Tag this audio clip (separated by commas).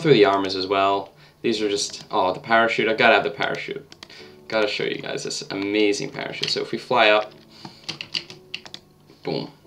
Computer keyboard, Music, Speech